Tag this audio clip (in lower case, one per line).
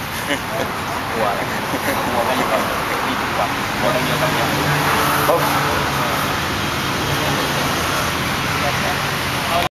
speech